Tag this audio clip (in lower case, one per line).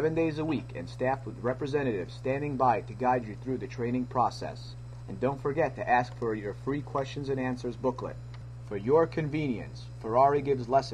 speech